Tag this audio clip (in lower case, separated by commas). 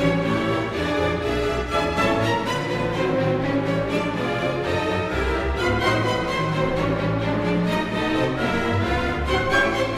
music, musical instrument, violin